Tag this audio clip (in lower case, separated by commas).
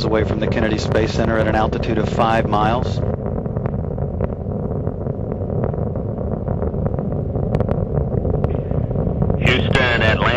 outside, rural or natural, speech